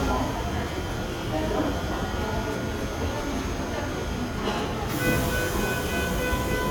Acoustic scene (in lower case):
subway station